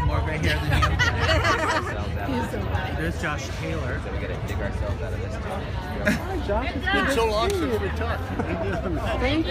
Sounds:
Speech, footsteps

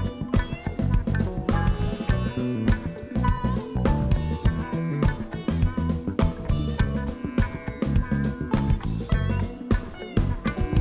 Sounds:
Music

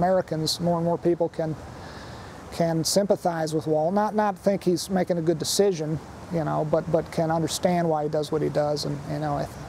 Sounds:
Speech

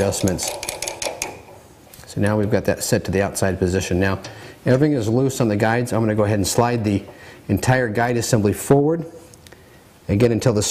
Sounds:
Tools, Speech

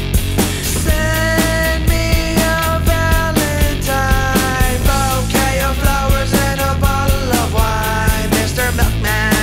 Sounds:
Music

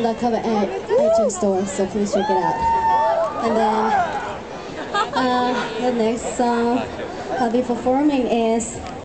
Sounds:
Speech

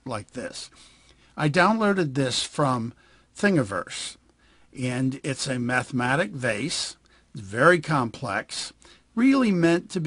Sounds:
Speech

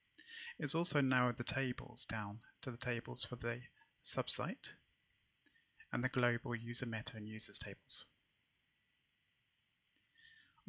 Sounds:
Speech

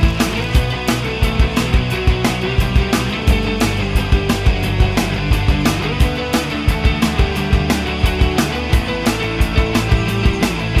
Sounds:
Music

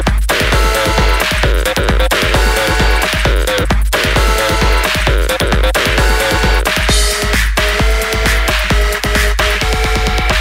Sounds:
Music, Techno, Electronic music

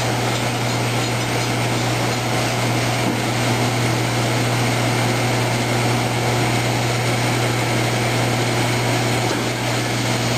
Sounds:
Engine

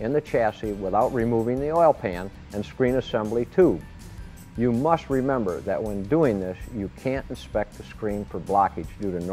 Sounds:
Music, Speech

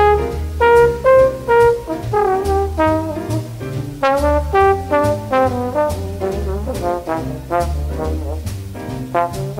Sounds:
Brass instrument, Trombone

